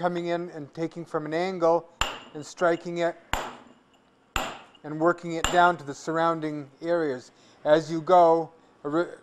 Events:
0.0s-1.8s: man speaking
0.0s-9.2s: mechanisms
0.1s-0.2s: generic impact sounds
2.0s-2.3s: hammer
2.3s-3.1s: man speaking
3.3s-3.6s: hammer
3.6s-3.7s: generic impact sounds
3.9s-4.0s: generic impact sounds
4.3s-4.7s: hammer
4.8s-6.6s: man speaking
5.4s-5.7s: hammer
6.8s-7.3s: man speaking
7.3s-7.6s: breathing
7.6s-8.5s: man speaking
8.8s-9.2s: man speaking

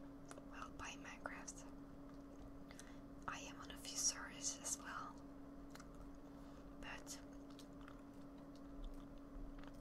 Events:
6.3s-6.6s: breathing
6.8s-7.2s: whispering
9.6s-9.8s: generic impact sounds

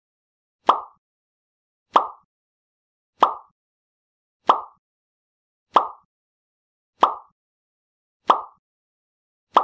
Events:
0.7s-1.0s: plop
1.9s-2.3s: plop
3.2s-3.5s: plop
4.4s-4.8s: plop
5.7s-6.0s: plop
7.0s-7.3s: plop
8.3s-8.6s: plop

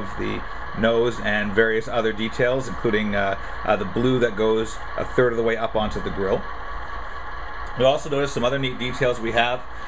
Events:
0.0s-9.8s: mechanisms
7.6s-7.7s: generic impact sounds
7.7s-9.6s: male speech
9.6s-9.8s: breathing

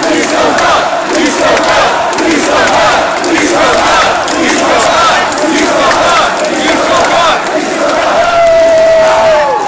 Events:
0.0s-9.5s: cheering
0.0s-9.6s: crowd
0.1s-0.7s: clapping
1.1s-1.7s: clapping
2.1s-2.8s: clapping
3.1s-3.8s: clapping
4.2s-4.8s: clapping
5.3s-6.0s: clapping
6.3s-7.0s: clapping
7.4s-8.0s: clapping
8.1s-9.6s: shout

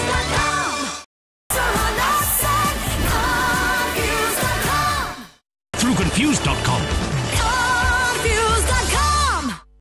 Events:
0.0s-1.1s: music
0.0s-1.0s: female singing
1.4s-5.3s: music
1.5s-5.2s: female singing
5.7s-9.8s: music
5.8s-7.0s: male speech
7.3s-9.5s: female singing

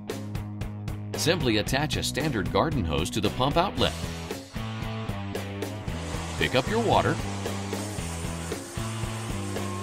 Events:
0.0s-9.8s: music
1.1s-3.9s: male speech
5.9s-9.8s: vacuum cleaner
6.4s-7.2s: male speech

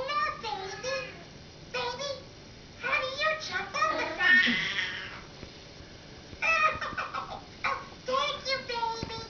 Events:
0.0s-1.1s: child speech
0.0s-9.2s: mechanisms
0.6s-1.1s: caterwaul
1.7s-2.1s: child speech
2.8s-4.4s: child speech
3.7s-5.2s: caterwaul
6.4s-7.4s: laughter
7.6s-7.9s: child speech
8.0s-9.2s: child speech

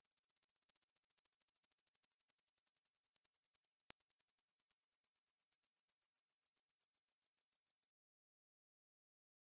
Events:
0.0s-7.9s: mouse
3.8s-3.9s: tap
3.8s-3.9s: generic impact sounds

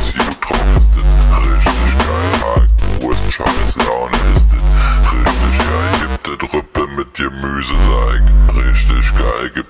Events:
0.0s-0.7s: male speech
0.0s-6.2s: music
0.9s-2.6s: male speech
2.9s-4.6s: male speech
4.7s-5.0s: breathing
5.1s-6.0s: male speech
6.2s-7.0s: male speech
7.1s-8.3s: male speech
7.7s-9.6s: music
8.5s-9.6s: male speech

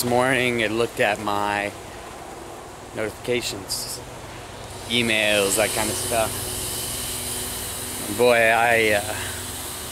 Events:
0.0s-1.7s: male speech
0.0s-9.9s: mechanisms
1.1s-1.1s: clicking
2.9s-4.0s: male speech
3.2s-3.3s: clicking
4.6s-4.7s: clicking
4.9s-6.3s: male speech
8.0s-9.0s: male speech
9.0s-9.4s: breathing

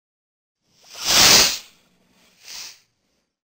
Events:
0.6s-3.4s: human sounds

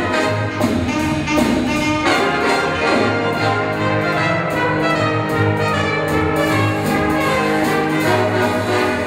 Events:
0.0s-9.0s: music

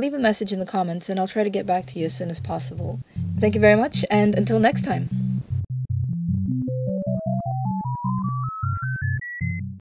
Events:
0.0s-2.9s: female speech
0.0s-5.6s: background noise
1.8s-9.8s: music
3.0s-3.3s: breathing
3.4s-5.0s: female speech
5.1s-5.3s: breathing

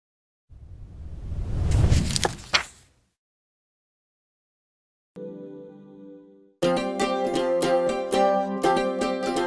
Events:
0.5s-3.1s: sound effect
5.1s-9.4s: music

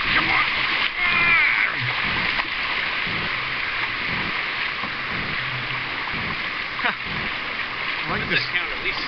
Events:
0.0s-0.5s: generic impact sounds
0.0s-9.0s: kayak
0.0s-9.0s: stream
0.0s-9.0s: wind
1.0s-1.8s: human voice
1.0s-1.4s: generic impact sounds
2.0s-2.4s: generic impact sounds
3.0s-3.6s: generic impact sounds
4.0s-4.3s: generic impact sounds
5.0s-5.4s: generic impact sounds
6.1s-6.3s: generic impact sounds
6.7s-7.1s: man speaking
7.1s-7.2s: generic impact sounds
8.0s-9.0s: man speaking
8.0s-8.4s: generic impact sounds

